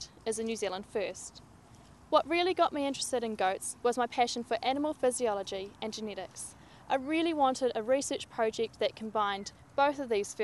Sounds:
Speech

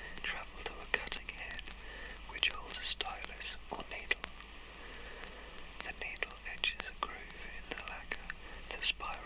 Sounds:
Speech

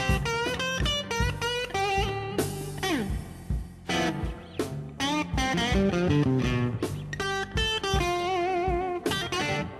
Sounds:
Music

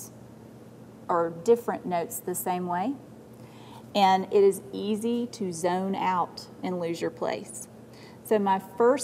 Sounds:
Speech

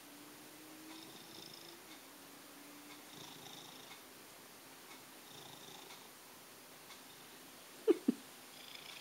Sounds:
Purr, Domestic animals, Animal, cat purring, Cat

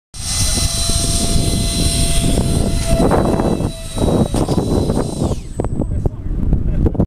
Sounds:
Speech

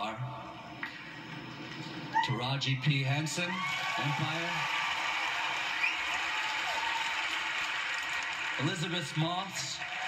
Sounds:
Speech, Male speech, monologue

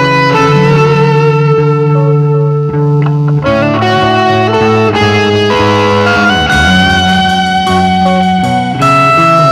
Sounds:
inside a large room or hall, Music

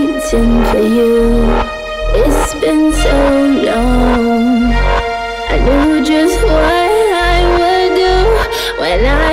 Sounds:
Music, Electronic music

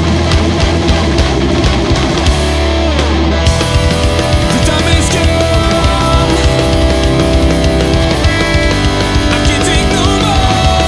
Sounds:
New-age music, Music

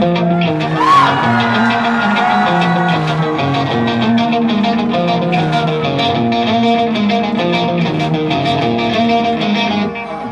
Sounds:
Musical instrument, Electric guitar, Guitar, Music

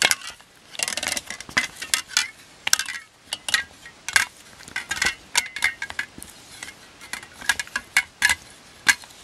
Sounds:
inside a small room

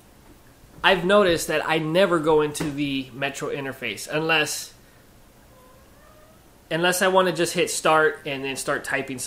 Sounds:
Speech

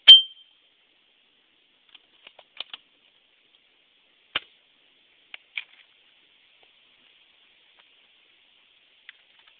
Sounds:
clink

